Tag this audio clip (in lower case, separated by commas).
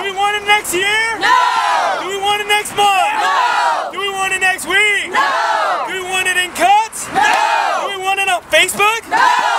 speech